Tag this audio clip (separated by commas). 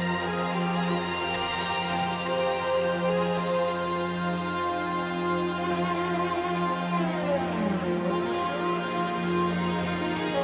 Music